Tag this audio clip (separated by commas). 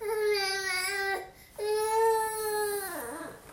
Speech, Human voice